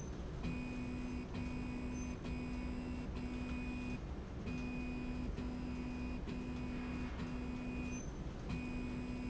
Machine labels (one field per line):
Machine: slide rail